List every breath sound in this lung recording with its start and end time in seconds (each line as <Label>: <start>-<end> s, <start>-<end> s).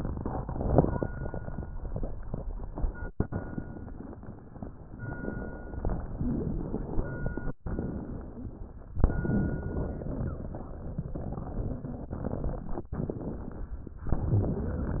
Exhalation: 0.36-1.06 s
Crackles: 0.36-1.06 s